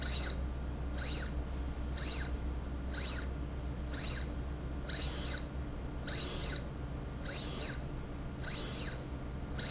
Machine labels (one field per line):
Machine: slide rail